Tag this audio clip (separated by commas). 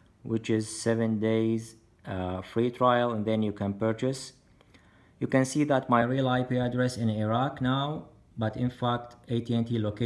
Speech